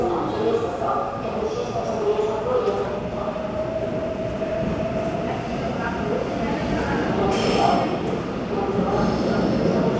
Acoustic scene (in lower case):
subway station